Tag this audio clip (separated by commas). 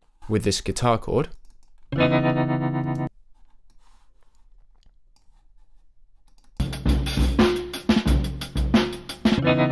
Music, inside a small room, Speech